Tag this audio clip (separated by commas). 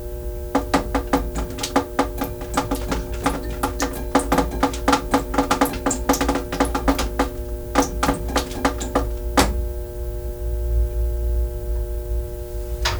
Liquid, Drip